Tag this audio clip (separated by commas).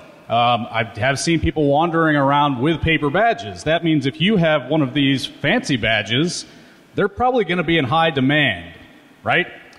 Speech